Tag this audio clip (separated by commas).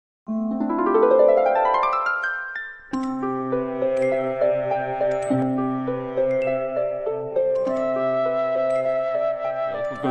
Music